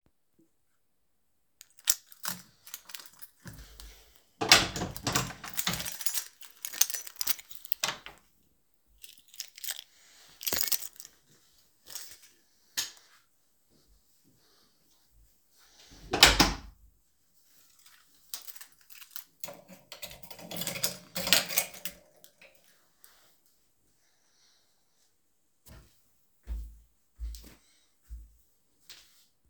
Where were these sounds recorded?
hallway